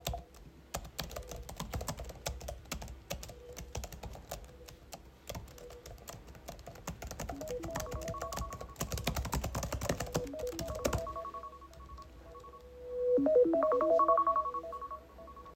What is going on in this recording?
I was typing on my computer keyboard. Suddenly, my smartphone received a loud notification chime.